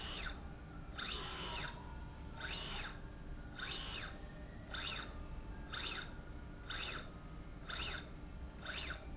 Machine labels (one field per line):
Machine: slide rail